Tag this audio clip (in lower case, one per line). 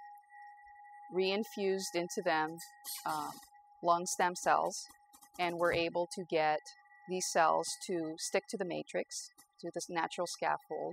speech